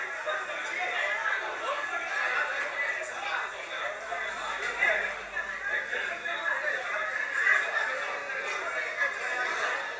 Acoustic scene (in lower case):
crowded indoor space